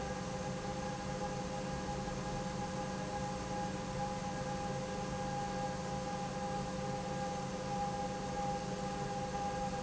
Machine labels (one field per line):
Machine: pump